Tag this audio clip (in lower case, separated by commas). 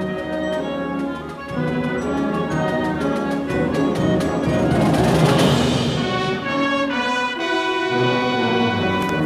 music, orchestra